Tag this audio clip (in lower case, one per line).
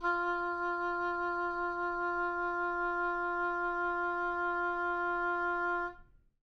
musical instrument
woodwind instrument
music